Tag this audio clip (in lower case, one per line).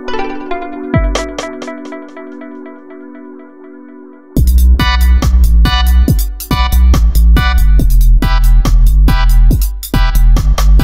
music